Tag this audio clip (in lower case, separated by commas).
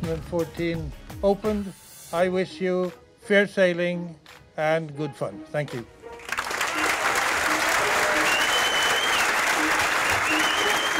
applause, speech, music